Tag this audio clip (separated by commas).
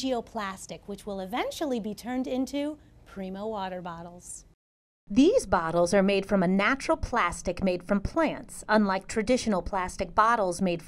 Speech